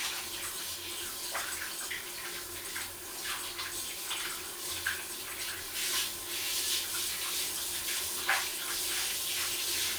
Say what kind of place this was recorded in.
restroom